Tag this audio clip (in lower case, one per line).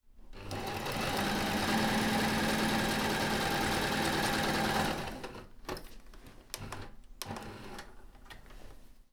engine
mechanisms